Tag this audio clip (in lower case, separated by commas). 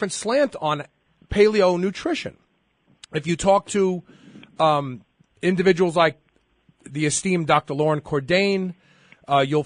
speech